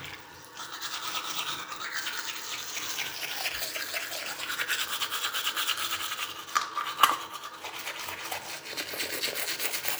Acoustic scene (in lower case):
restroom